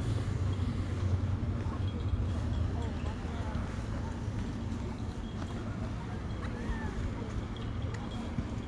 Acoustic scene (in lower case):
park